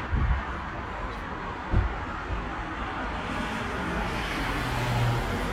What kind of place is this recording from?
street